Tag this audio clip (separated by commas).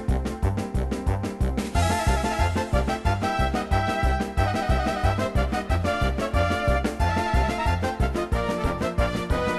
Music